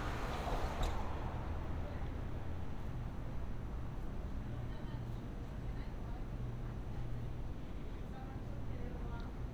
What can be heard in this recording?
background noise